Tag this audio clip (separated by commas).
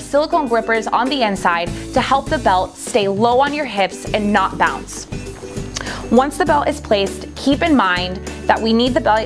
Speech, Music